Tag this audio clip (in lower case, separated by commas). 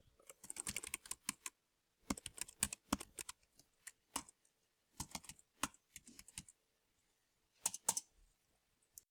typing, home sounds, computer keyboard